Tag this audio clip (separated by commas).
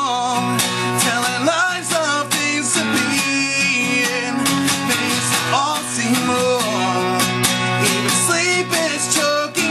Music